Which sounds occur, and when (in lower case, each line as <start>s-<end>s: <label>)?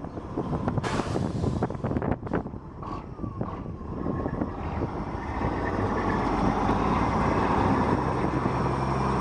0.0s-2.6s: wind noise (microphone)
0.0s-9.2s: truck
0.0s-9.2s: wind
0.8s-1.6s: air brake
2.8s-3.0s: revving
3.1s-3.7s: wind noise (microphone)
3.3s-3.6s: revving
3.8s-5.1s: wind noise (microphone)
5.4s-5.5s: wind noise (microphone)
5.7s-5.9s: wind noise (microphone)
6.4s-6.5s: wind noise (microphone)
7.3s-7.9s: wind noise (microphone)
8.1s-8.7s: wind noise (microphone)